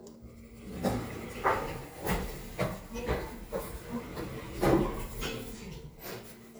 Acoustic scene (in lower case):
elevator